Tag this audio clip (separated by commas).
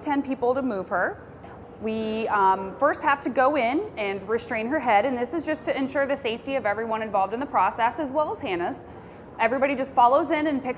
Speech